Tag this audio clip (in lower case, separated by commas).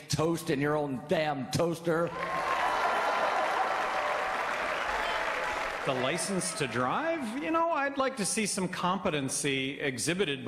people booing